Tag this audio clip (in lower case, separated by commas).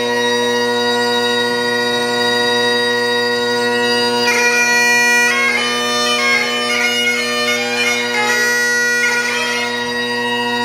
playing bagpipes, bagpipes, music